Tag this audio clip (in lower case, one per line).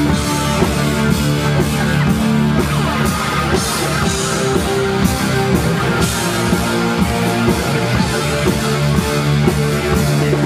music
rock and roll